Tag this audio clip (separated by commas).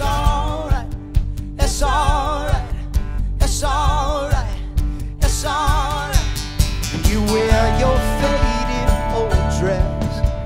Music